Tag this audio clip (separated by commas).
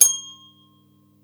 Bell